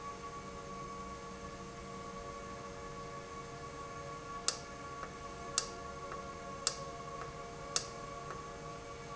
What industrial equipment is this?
valve